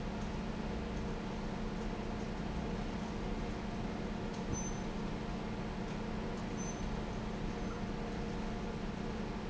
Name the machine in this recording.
fan